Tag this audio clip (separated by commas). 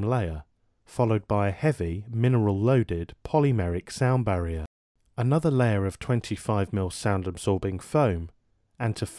Speech